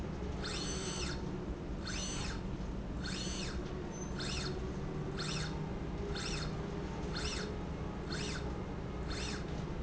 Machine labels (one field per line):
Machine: slide rail